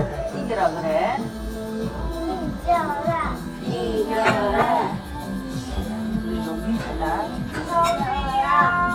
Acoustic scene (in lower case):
restaurant